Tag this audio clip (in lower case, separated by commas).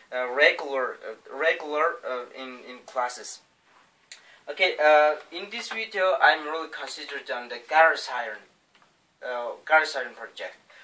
speech